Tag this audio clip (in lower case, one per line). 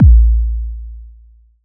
percussion
musical instrument
music
bass drum
drum